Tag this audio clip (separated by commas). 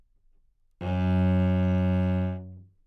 Bowed string instrument, Musical instrument, Music